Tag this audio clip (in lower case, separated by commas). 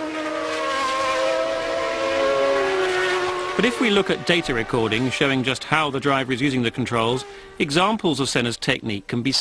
vroom, car, vehicle, speech